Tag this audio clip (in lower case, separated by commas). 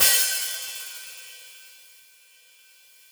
cymbal, percussion, music, hi-hat, musical instrument